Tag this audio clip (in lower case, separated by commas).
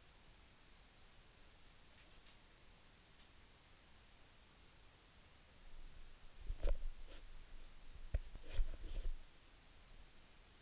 inside a small room, silence